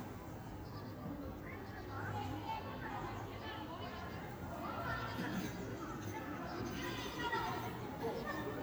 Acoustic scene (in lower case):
park